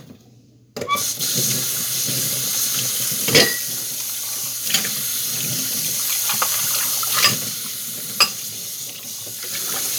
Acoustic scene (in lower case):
kitchen